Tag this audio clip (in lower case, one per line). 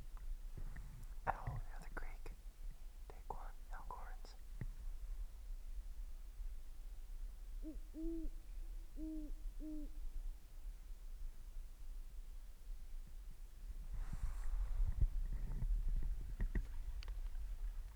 bird
animal
wild animals